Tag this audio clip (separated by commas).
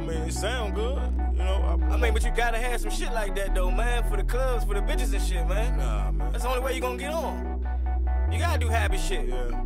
Music